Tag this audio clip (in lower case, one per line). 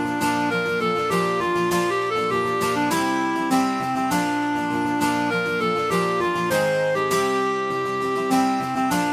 strum
guitar
acoustic guitar
plucked string instrument
musical instrument
music